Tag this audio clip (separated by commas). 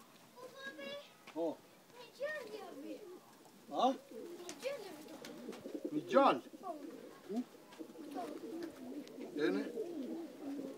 Speech, Bird, dove